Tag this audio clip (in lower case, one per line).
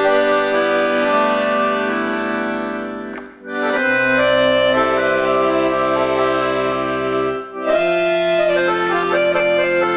music
accordion
musical instrument
playing accordion